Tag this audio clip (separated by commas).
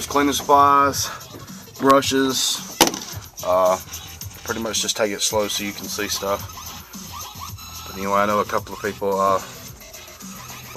Music, Speech